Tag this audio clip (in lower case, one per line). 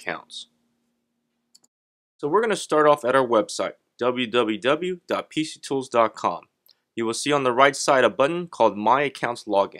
speech